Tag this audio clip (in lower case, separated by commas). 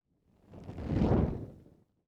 fire